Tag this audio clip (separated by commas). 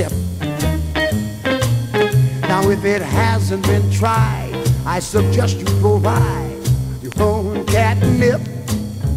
Music